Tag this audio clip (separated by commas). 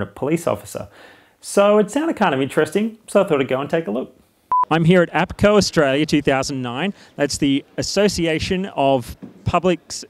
Speech